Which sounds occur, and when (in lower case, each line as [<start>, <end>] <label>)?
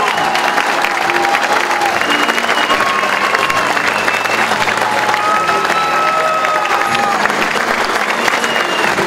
[0.00, 9.05] cheering
[0.00, 9.05] clapping
[0.00, 9.05] music
[1.87, 3.81] whistling
[4.10, 4.74] whistling
[8.36, 8.93] whistling